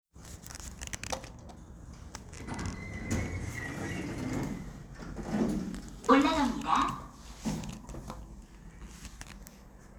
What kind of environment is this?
elevator